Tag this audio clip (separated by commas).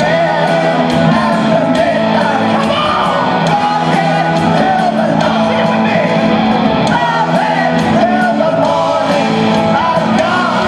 Singing, inside a large room or hall, Music, Shout